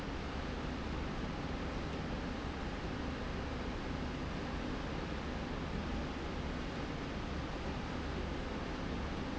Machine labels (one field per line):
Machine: slide rail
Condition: normal